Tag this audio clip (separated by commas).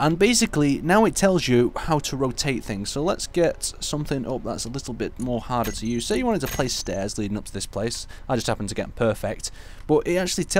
Speech